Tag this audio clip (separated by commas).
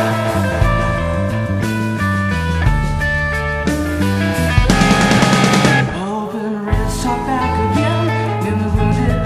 Music, Singing